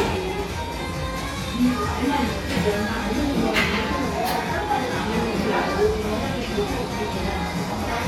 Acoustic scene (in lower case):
cafe